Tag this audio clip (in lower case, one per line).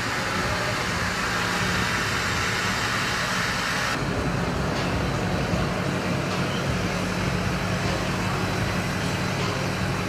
inside a large room or hall
music
truck
vehicle
outside, urban or man-made